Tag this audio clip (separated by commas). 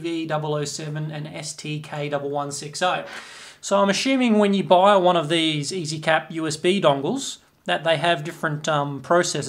Speech